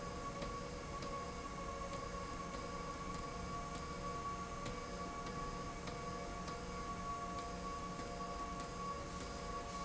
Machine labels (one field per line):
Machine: slide rail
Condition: abnormal